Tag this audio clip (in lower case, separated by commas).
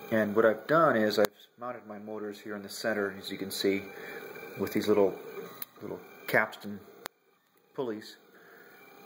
speech